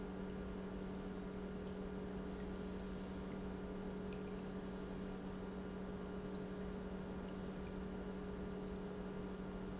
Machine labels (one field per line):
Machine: pump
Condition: normal